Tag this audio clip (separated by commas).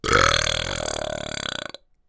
Burping